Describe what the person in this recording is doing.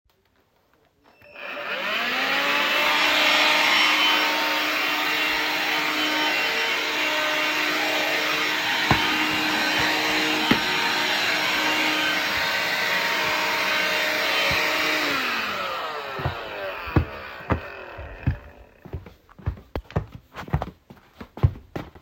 Vacuum cleaner runs and then a person walks.